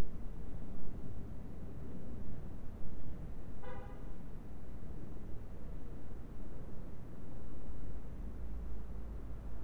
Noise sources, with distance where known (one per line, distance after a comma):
car horn, far